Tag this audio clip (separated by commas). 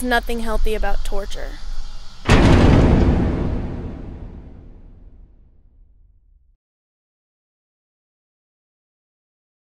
Speech